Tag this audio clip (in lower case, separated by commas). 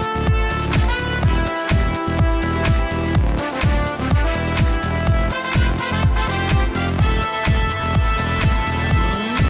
music